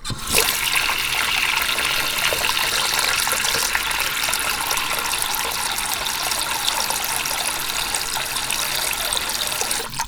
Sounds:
Sink (filling or washing), home sounds

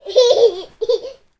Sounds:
Laughter, Human voice

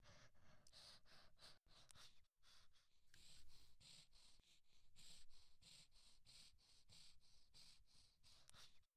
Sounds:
Breathing, Respiratory sounds

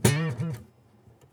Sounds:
Musical instrument, Plucked string instrument, Music, Guitar

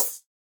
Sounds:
Percussion, Hi-hat, Cymbal, Music, Musical instrument

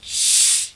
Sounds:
Hiss

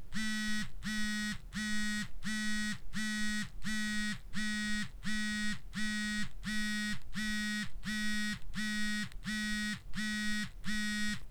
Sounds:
Telephone, Alarm

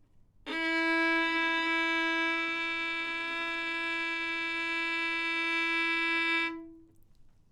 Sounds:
Bowed string instrument, Music, Musical instrument

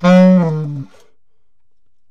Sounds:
Musical instrument, Wind instrument, Music

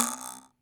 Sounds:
Cutlery, Domestic sounds

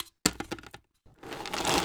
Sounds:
Crushing

